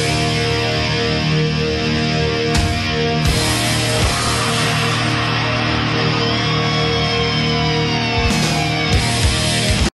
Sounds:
Music

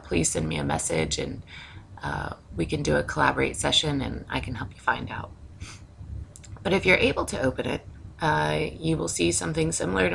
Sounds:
Speech

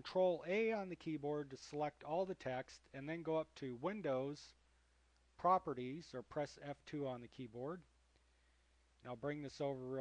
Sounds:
Speech

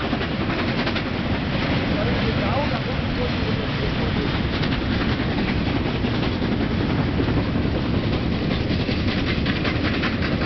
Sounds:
train whistling

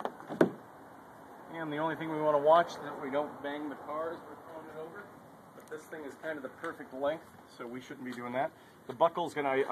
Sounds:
Speech

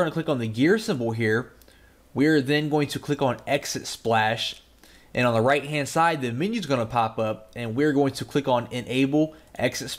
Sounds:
Speech

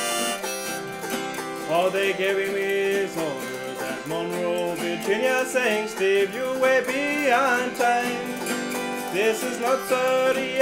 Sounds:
Music

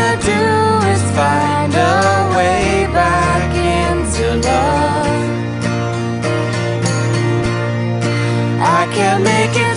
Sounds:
Singing, Music

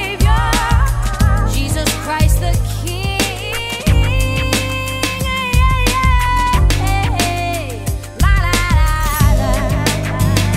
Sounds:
Funk

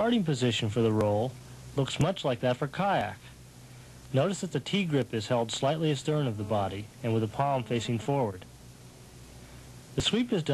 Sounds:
Speech

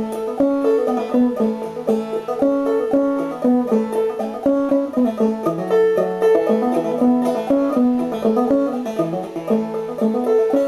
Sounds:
playing banjo, Music, Musical instrument, Plucked string instrument, Banjo

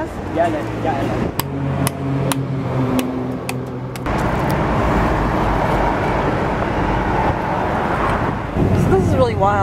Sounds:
Bus, Car

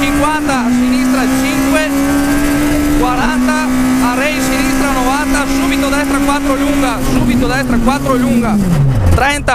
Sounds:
Car, Motor vehicle (road), Speech, Vehicle

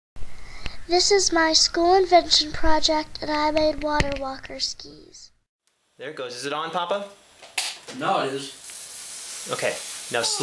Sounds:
Child speech

